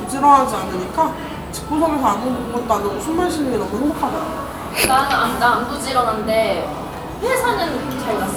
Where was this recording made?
in a cafe